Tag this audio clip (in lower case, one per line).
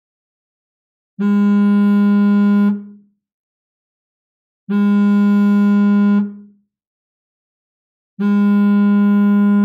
cell phone buzzing